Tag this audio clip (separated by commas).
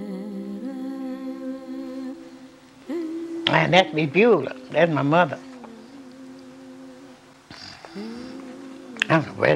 inside a small room, Music, Speech